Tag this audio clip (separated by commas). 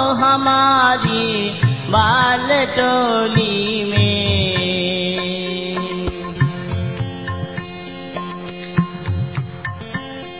Music